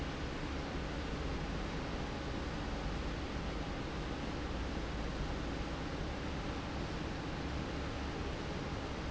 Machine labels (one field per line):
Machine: fan